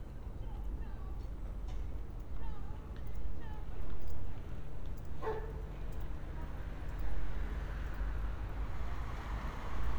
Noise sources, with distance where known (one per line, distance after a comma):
medium-sounding engine
person or small group talking, far
dog barking or whining, near